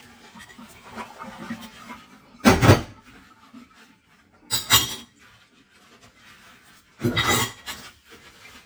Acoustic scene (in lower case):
kitchen